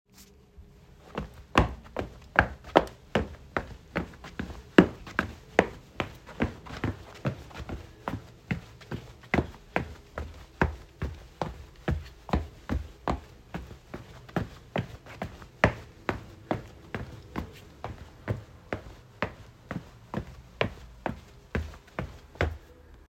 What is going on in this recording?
I simply walked around my bedroom continuously for a short period of time.